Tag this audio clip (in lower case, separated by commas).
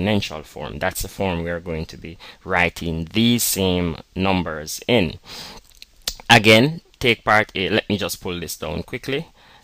speech